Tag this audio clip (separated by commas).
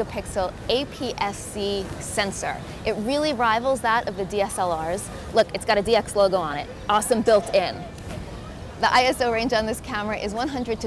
Speech